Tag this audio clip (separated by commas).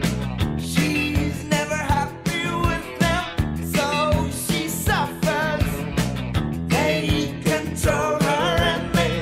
Music